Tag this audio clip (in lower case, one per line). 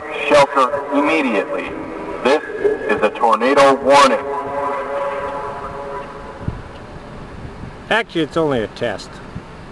speech